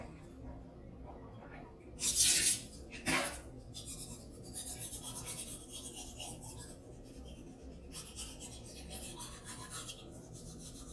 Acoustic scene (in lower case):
restroom